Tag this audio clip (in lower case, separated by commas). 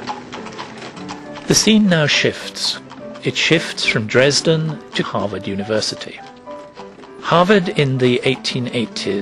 speech, music